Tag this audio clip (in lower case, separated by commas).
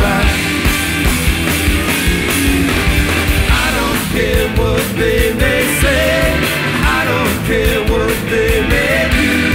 drum kit, guitar, punk rock, snare drum, music, musical instrument, drum